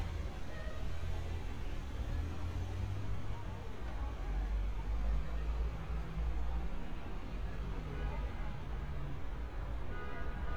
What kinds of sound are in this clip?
engine of unclear size, unidentified human voice